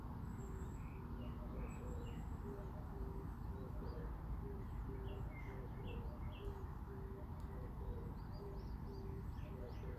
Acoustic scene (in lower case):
park